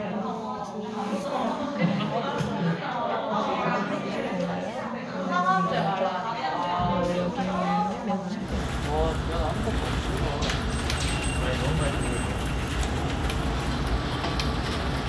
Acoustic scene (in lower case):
crowded indoor space